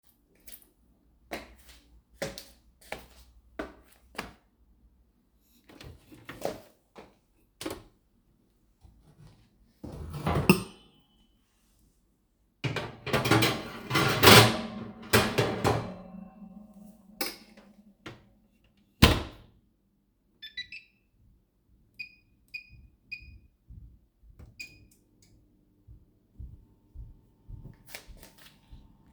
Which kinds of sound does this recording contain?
footsteps, microwave